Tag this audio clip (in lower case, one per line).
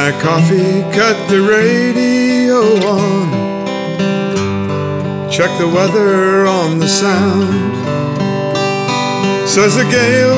music
soul music